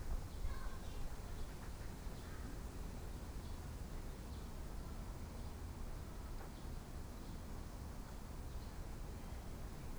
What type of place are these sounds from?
park